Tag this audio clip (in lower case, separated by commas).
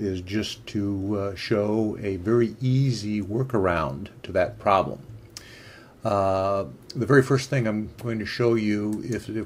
speech